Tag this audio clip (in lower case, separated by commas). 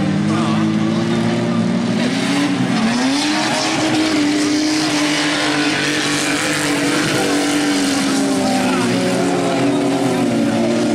speech, car passing by